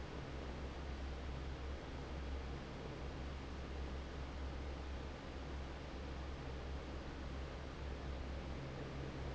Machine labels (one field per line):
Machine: fan